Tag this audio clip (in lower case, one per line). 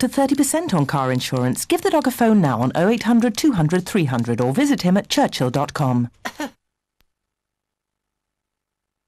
speech